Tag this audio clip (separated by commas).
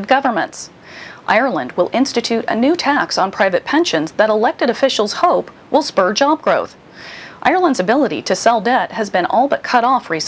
Speech